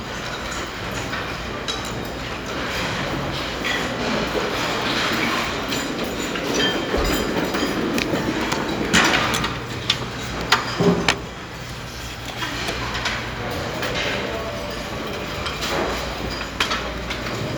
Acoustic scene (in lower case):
restaurant